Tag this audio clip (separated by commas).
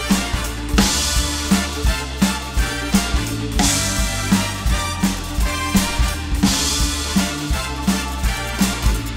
Music, Drum, playing drum kit, Drum kit, Musical instrument